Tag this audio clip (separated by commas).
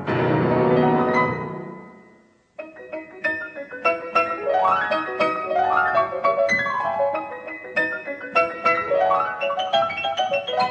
Music